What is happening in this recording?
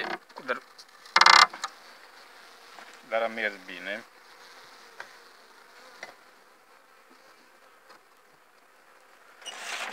A man is speaking followed by a door opening sound with a bee sound